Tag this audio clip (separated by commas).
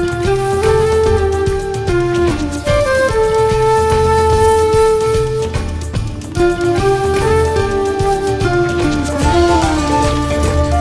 Music